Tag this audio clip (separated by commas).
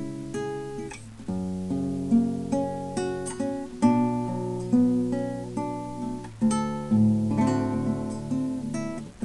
Musical instrument, Acoustic guitar, Music, Guitar